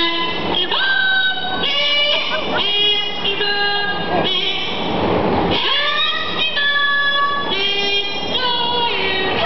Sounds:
Female singing

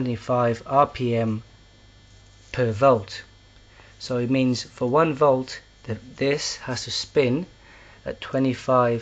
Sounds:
Speech

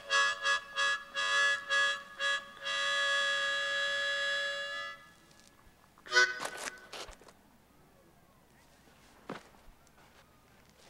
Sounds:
outside, rural or natural, Music

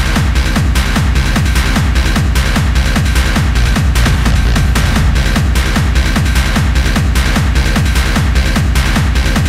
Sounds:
Electronic music, Music, Techno

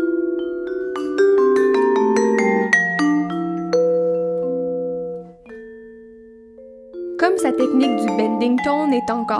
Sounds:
Music, Vibraphone, Speech

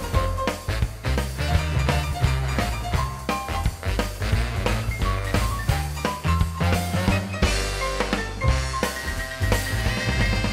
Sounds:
Swing music

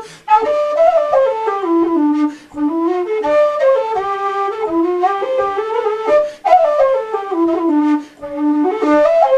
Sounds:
Music, playing flute, Flute, Musical instrument, woodwind instrument

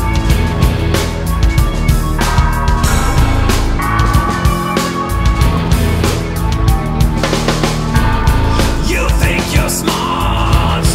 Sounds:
Music

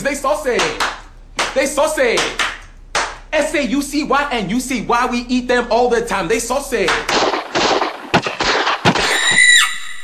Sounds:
Speech

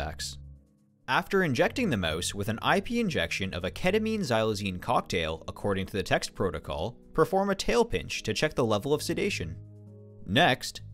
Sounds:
Speech

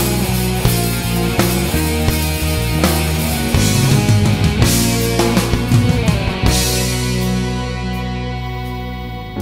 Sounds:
Exciting music, Music

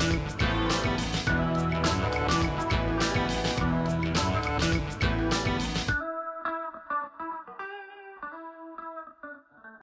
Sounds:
Music

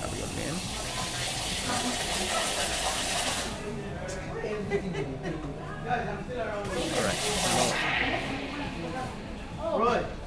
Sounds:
Speech

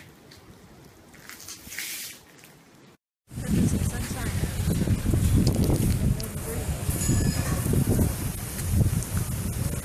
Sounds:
outside, urban or man-made, Speech

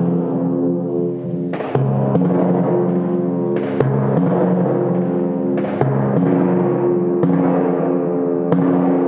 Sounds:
playing tympani

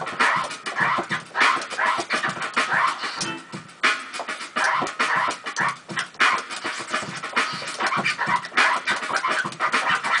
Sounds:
Electronic music, Music, Scratching (performance technique)

